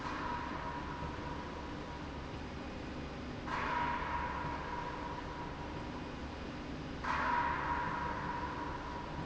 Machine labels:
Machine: slide rail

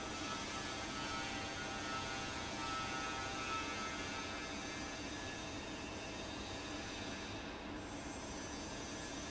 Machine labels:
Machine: fan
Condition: abnormal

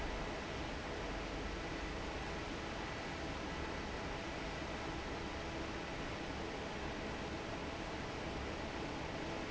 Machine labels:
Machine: fan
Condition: normal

